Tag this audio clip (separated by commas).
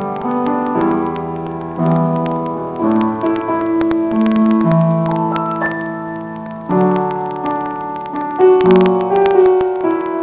Music